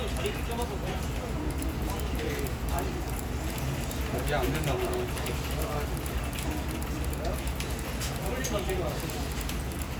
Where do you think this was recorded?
in a crowded indoor space